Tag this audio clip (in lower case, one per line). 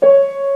musical instrument
keyboard (musical)
music
piano